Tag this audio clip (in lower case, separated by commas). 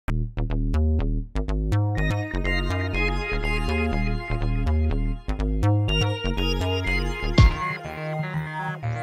synthesizer